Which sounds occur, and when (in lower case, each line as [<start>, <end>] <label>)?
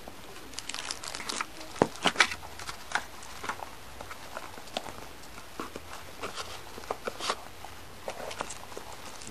[0.00, 0.30] generic impact sounds
[0.00, 9.30] mechanisms
[0.48, 1.42] crinkling
[1.57, 2.29] generic impact sounds
[2.49, 2.98] generic impact sounds
[3.17, 3.68] generic impact sounds
[3.89, 7.29] generic impact sounds
[7.59, 7.80] generic impact sounds
[8.01, 8.62] generic impact sounds
[8.24, 9.30] crinkling